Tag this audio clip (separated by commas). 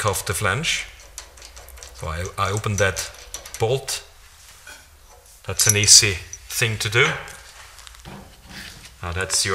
Speech